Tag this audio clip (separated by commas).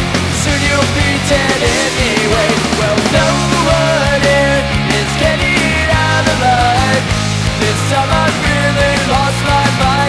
Music